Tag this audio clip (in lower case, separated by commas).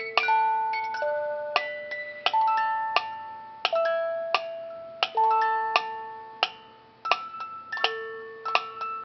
tick, music